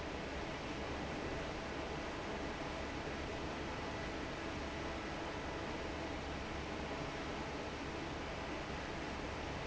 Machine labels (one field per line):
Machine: fan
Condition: normal